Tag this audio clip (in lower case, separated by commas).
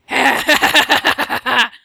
laughter, human voice